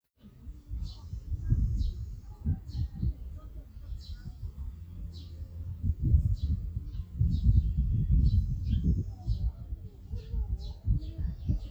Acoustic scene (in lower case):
park